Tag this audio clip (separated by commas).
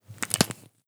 Crushing, Crack